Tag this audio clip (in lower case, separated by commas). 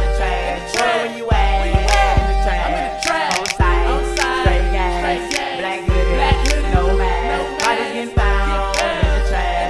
music, jazz, pop music